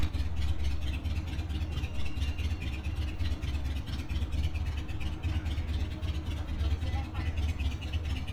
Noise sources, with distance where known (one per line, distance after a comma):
engine of unclear size, near